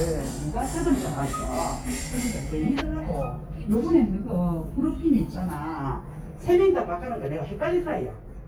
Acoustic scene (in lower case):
elevator